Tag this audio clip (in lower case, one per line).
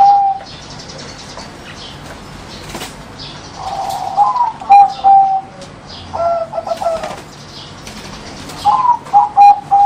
bird
animal
coo